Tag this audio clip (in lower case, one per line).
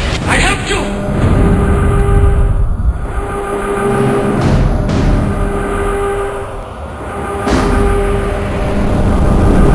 music
speech